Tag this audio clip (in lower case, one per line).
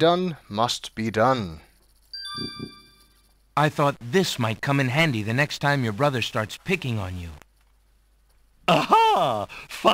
speech